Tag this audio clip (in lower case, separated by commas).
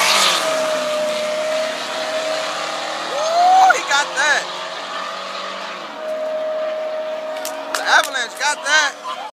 vehicle, speech